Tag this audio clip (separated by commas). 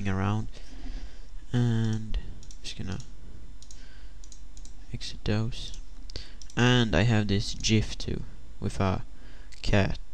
Speech